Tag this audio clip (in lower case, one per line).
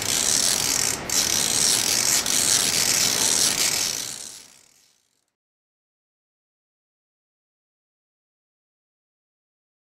gears
pawl
mechanisms